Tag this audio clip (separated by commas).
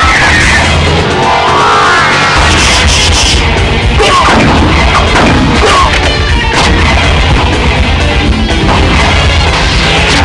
Music